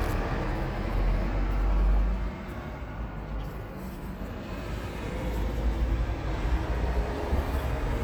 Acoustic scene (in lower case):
street